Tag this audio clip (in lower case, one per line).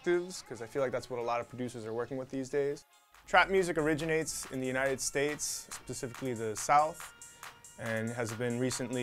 speech
music